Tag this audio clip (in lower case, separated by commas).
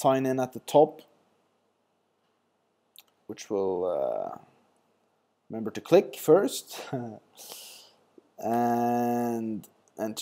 speech